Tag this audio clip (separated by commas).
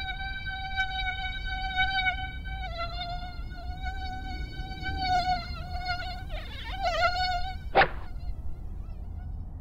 Fly, Mosquito, Insect